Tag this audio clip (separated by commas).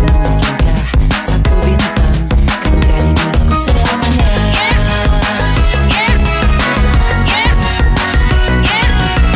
Music